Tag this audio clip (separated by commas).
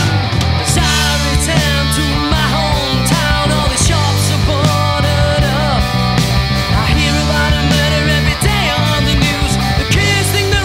Punk rock, Rock music, Progressive rock, Singing, Music